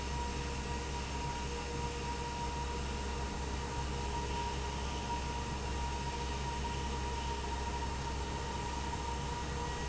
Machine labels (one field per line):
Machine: fan